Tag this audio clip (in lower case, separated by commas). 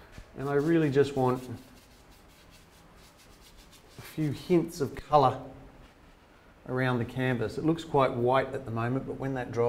water vehicle, speech